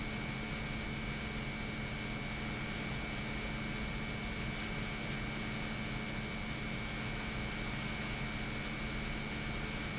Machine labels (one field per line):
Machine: pump